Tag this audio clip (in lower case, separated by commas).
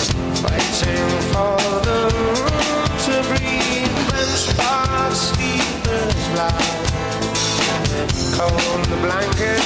drum, drum kit, music, musical instrument